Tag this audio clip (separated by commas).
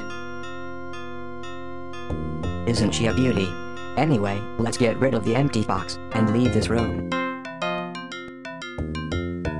Speech, Music